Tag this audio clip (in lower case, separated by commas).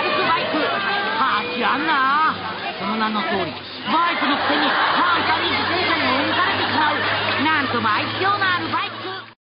vehicle, speech